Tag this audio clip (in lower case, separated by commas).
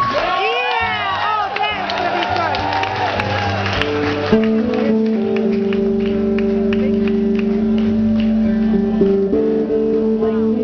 music, speech